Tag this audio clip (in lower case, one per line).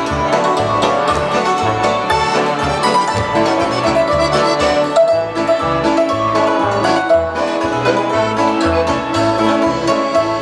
accordion
orchestra
musical instrument
music